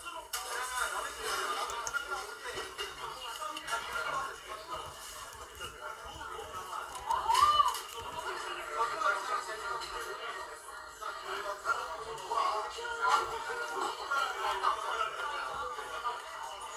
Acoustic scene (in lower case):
crowded indoor space